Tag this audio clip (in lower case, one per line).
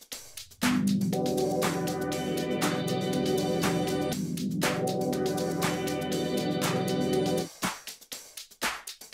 music